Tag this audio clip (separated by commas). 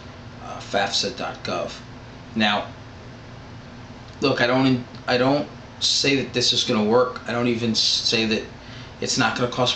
Speech